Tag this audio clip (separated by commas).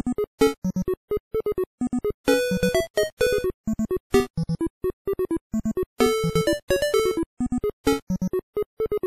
Music